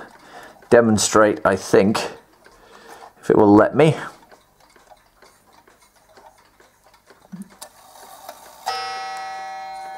Male voice speaking loud and clearly